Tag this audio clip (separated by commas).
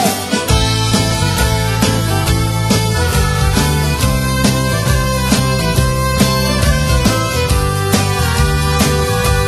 Music, Guitar, Musical instrument